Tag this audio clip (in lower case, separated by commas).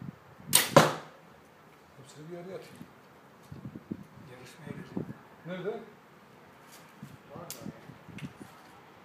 arrow